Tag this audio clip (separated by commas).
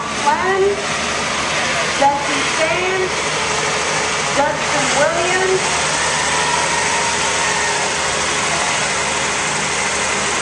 outside, rural or natural, Speech, Truck, Vehicle